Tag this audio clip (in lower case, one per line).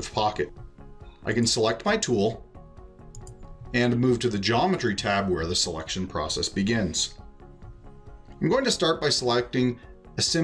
speech